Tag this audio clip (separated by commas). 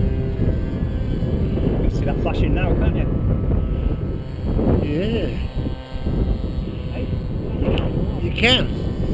Speech